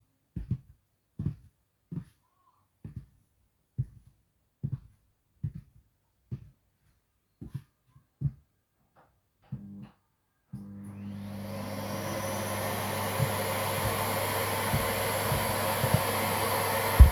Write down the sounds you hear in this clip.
footsteps, vacuum cleaner